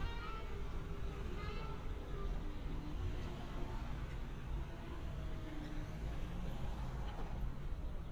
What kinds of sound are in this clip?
medium-sounding engine, music from a fixed source